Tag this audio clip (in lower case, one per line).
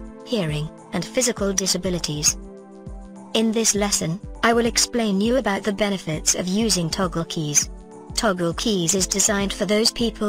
speech
music